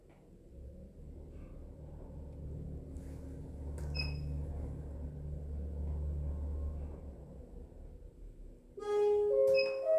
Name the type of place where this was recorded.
elevator